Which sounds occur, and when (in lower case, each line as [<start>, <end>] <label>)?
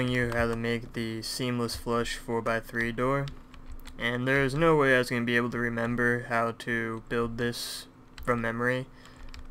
[0.00, 3.28] man speaking
[0.00, 9.50] background noise
[0.26, 0.94] computer keyboard
[2.67, 2.81] computer keyboard
[3.22, 3.98] computer keyboard
[3.95, 7.91] man speaking
[6.93, 7.12] computer keyboard
[8.09, 8.42] computer keyboard
[8.23, 8.90] man speaking
[8.86, 9.47] breathing
[8.94, 9.50] computer keyboard